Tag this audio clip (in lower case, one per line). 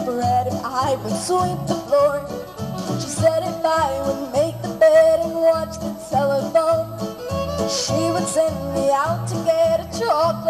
music
singing